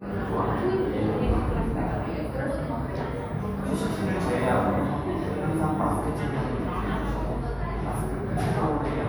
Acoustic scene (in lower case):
cafe